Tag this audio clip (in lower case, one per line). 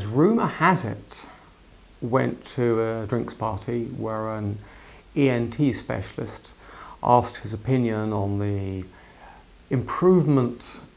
speech